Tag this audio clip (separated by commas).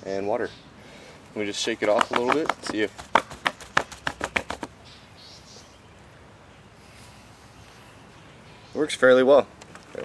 Speech